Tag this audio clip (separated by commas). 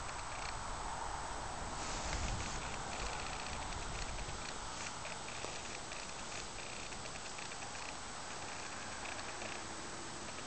outside, urban or man-made